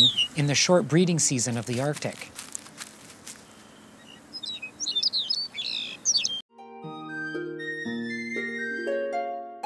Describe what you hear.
Man speaking with bird chirping before calming music plays